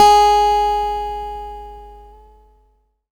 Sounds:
guitar, musical instrument, music, plucked string instrument, acoustic guitar

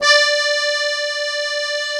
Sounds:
musical instrument, accordion, music

